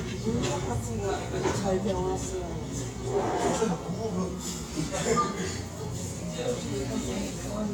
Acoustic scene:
cafe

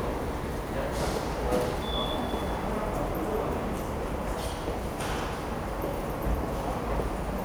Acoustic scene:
subway station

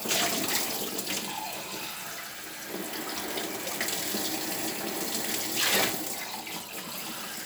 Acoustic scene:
kitchen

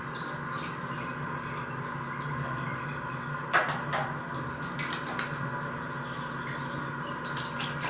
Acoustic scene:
restroom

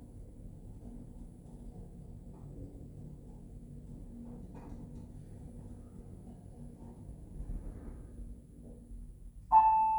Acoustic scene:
elevator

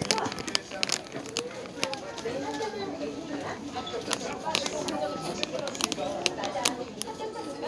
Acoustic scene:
crowded indoor space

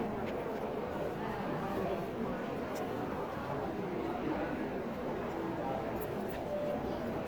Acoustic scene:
crowded indoor space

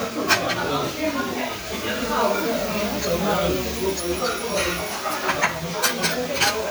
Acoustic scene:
restaurant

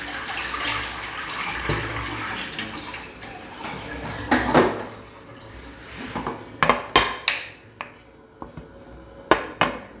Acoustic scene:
restroom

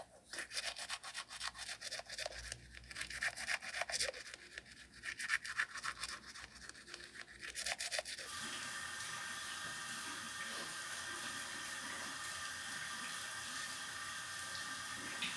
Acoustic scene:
restroom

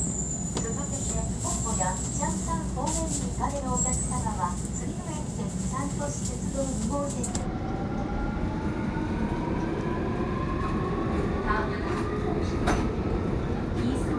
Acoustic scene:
subway train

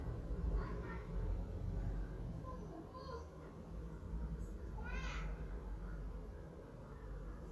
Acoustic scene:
residential area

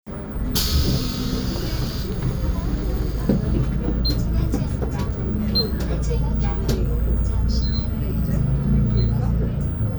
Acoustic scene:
bus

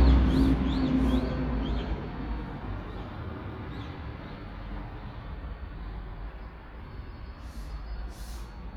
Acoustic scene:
residential area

